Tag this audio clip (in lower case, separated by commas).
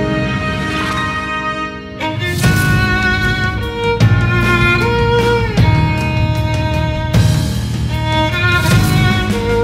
musical instrument, music, violin